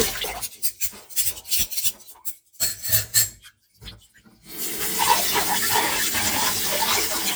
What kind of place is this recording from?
kitchen